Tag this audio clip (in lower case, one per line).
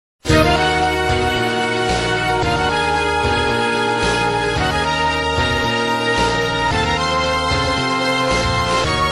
video game music